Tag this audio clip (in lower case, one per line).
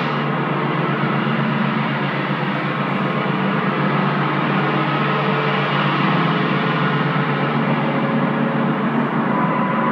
gong